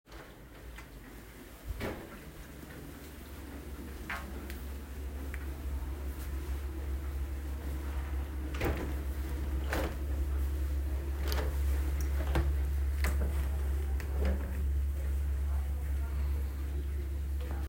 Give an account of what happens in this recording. Opening a window in the kitchen with the dishwasher running and faint TV mumble in the background.